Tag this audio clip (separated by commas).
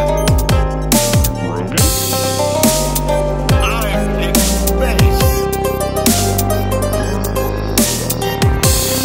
Dubstep, Music, Speech, Electronic music